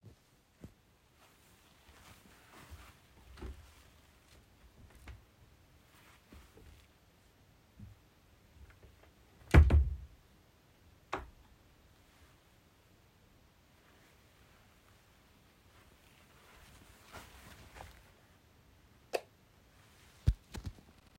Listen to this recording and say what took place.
I opened the wardrobe and looked inside for a moment. Then I decided to keep my current outfit, closed the wardrobe, walked to the light switch, and turned the light off.